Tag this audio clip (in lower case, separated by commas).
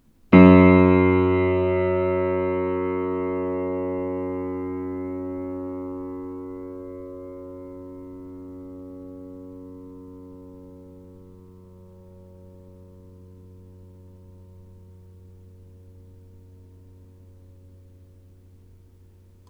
music, musical instrument, keyboard (musical), piano